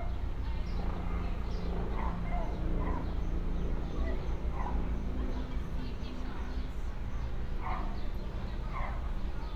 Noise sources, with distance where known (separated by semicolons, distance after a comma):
person or small group talking; dog barking or whining, far